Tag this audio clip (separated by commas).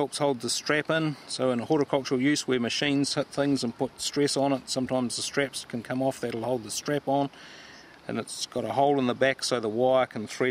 Speech